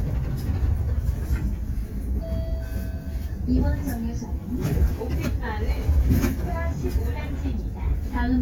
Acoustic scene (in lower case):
bus